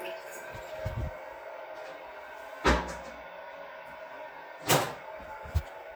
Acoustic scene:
restroom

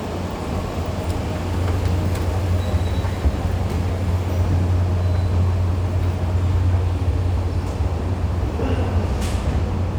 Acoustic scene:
subway station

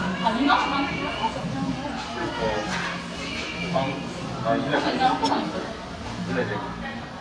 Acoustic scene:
crowded indoor space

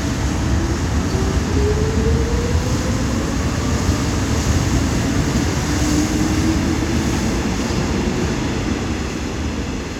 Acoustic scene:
subway station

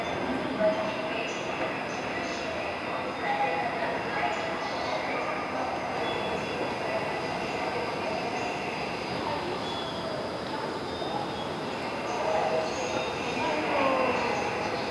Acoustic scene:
subway station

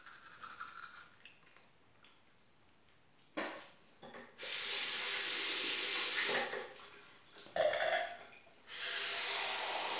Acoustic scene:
restroom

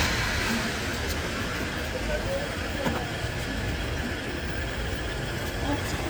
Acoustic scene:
residential area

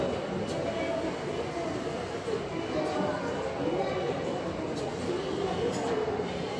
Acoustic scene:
subway station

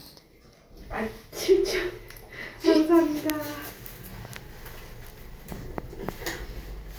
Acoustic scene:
elevator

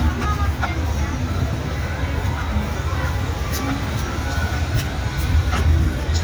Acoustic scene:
street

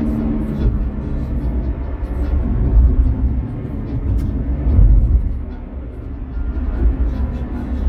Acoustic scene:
car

